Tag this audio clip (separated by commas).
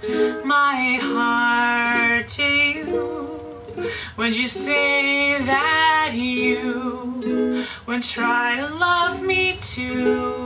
Music